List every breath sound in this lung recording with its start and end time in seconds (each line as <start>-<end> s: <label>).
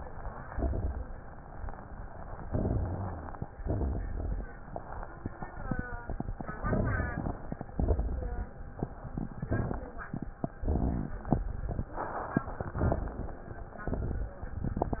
0.49-1.20 s: exhalation
0.49-1.20 s: crackles
2.45-3.32 s: inhalation
2.45-3.32 s: crackles
3.59-4.46 s: exhalation
3.59-4.46 s: crackles
6.60-7.48 s: inhalation
6.60-7.48 s: crackles
7.76-8.48 s: exhalation
7.76-8.48 s: crackles
9.07-9.93 s: inhalation
9.07-9.93 s: crackles
10.57-11.29 s: exhalation
10.57-11.29 s: crackles
12.48-13.34 s: inhalation
12.48-13.34 s: crackles
13.81-14.48 s: exhalation
13.81-14.48 s: crackles